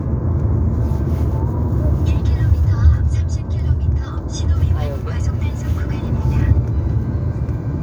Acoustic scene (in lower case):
car